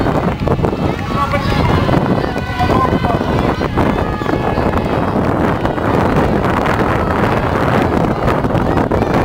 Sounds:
outside, urban or man-made, Speech

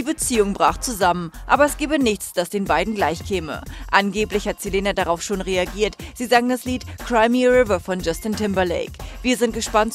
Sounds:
Speech, Music

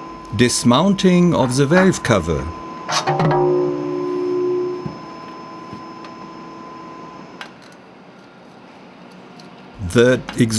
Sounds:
Speech

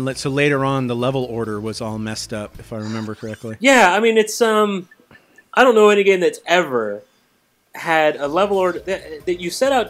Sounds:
Speech, Music

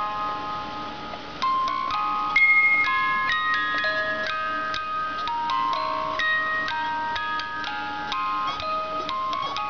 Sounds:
Music, inside a small room

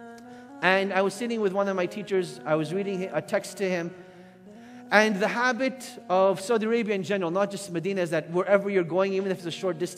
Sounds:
Music, Speech

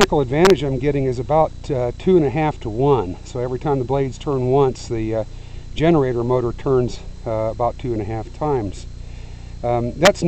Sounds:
Speech

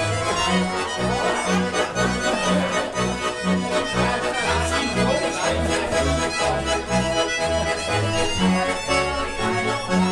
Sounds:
Music

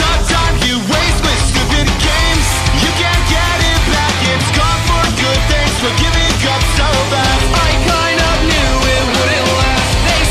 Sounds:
Music, Jazz

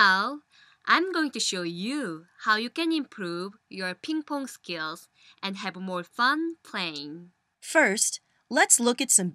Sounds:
Speech

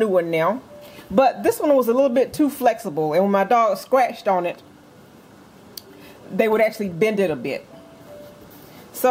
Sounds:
Music, Speech

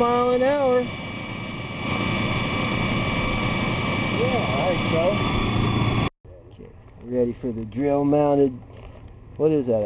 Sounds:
Speech, Boat, Engine, outside, rural or natural

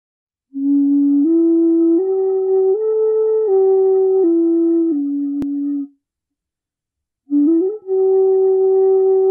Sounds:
Flute, Musical instrument, Music

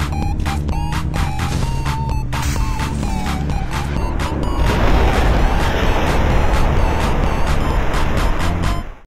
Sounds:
Music

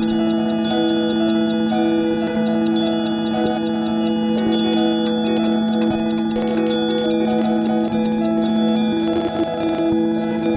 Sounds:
Music

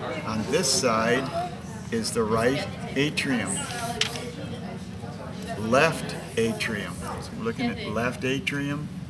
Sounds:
Speech

